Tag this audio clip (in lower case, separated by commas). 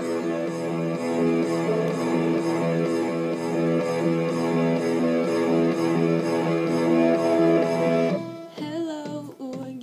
guitar, music, singing, tapping (guitar technique)